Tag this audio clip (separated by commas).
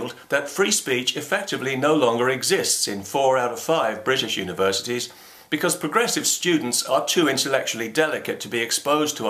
Speech, Male speech, Narration